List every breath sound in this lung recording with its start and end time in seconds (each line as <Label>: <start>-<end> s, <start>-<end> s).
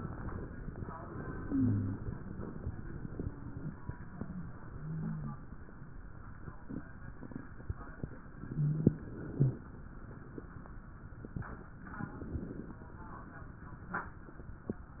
Inhalation: 11.92-12.83 s
Wheeze: 1.50-2.03 s, 4.74-5.41 s, 8.43-9.09 s